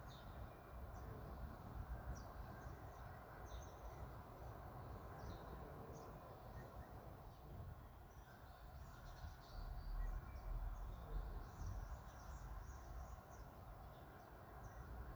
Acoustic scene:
park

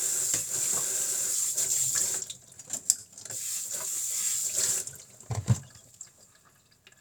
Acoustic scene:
kitchen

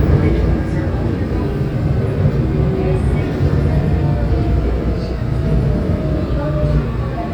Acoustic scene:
subway train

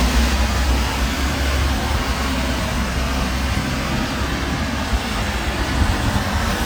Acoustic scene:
street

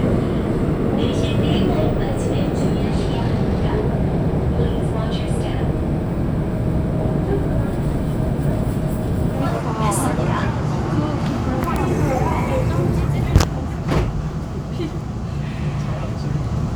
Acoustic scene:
subway train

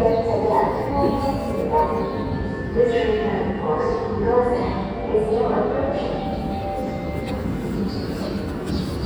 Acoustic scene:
subway station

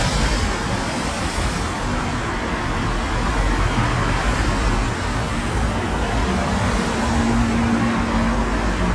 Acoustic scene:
street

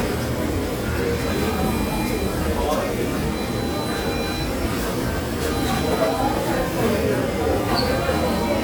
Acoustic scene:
restaurant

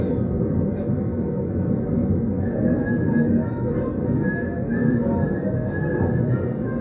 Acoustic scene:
subway train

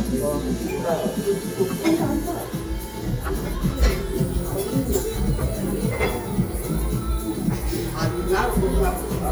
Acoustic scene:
restaurant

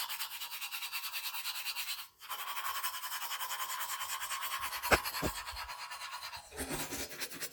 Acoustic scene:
restroom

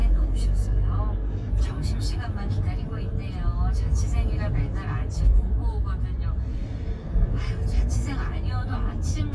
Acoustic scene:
car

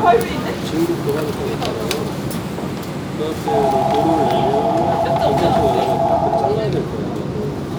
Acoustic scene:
subway train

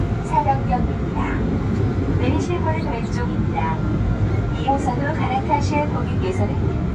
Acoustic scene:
subway train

